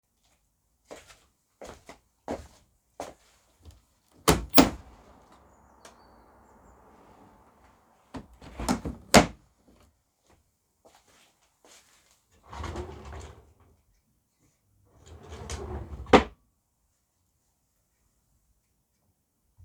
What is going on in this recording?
I walked across the bedroom. I opened the window and then opened a wardrobe drawer. The footsteps window and drawer sounds followed each other.